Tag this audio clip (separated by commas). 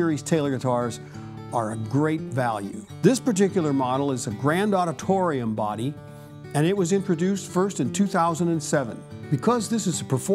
Speech, Strum, Music, Plucked string instrument, Musical instrument, Guitar